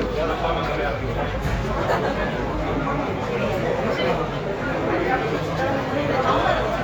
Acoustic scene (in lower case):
crowded indoor space